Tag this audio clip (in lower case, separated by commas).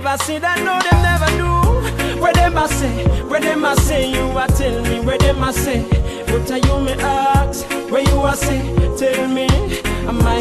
music, afrobeat